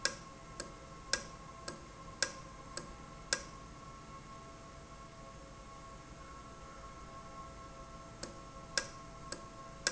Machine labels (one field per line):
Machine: valve